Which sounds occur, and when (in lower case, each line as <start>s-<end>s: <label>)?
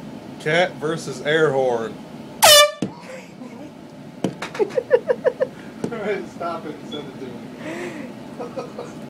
0.0s-9.0s: mechanisms
0.3s-0.6s: man speaking
0.8s-1.9s: man speaking
2.4s-2.8s: truck horn
2.8s-2.9s: tap
2.9s-3.6s: chortle
3.8s-3.9s: tick
4.2s-4.3s: tap
4.4s-4.6s: generic impact sounds
4.5s-5.5s: laughter
5.5s-5.7s: breathing
5.8s-5.9s: tap
5.9s-6.2s: man speaking
6.3s-7.3s: man speaking
6.9s-7.1s: squeal
7.5s-8.0s: breathing
8.3s-8.9s: laughter